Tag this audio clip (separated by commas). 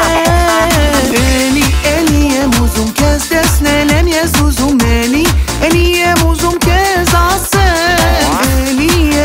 Music